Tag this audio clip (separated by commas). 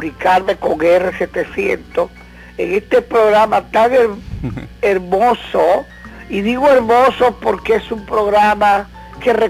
Music, Speech, Radio